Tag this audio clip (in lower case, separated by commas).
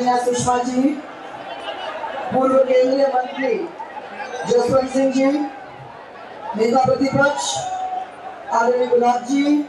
speech, female speech